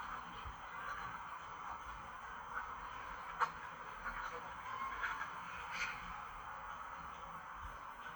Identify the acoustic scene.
park